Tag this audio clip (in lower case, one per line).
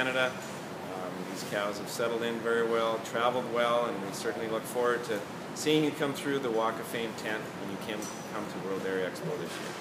speech